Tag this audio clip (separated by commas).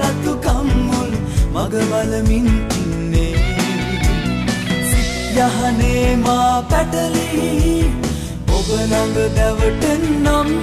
Singing, Music